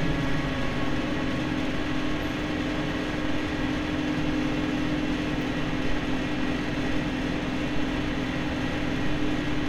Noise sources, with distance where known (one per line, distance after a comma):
large-sounding engine, near